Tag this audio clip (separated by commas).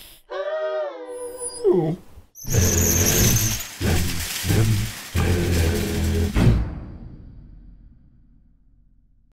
pets, Music